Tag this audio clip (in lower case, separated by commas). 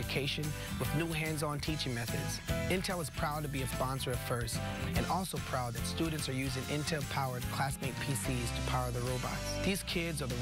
music, speech